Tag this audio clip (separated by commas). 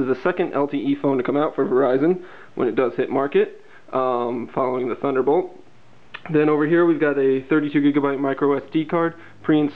Speech